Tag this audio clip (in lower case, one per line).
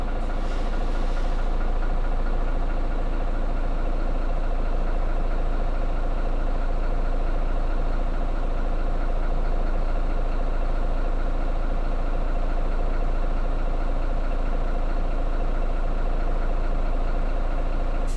bus
motor vehicle (road)
vehicle